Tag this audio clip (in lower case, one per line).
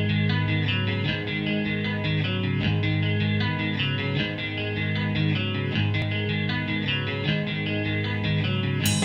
music